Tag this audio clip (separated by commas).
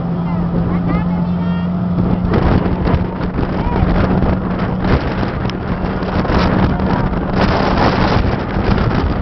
Vehicle, Speech